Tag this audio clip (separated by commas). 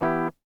Plucked string instrument, Guitar, Musical instrument, Music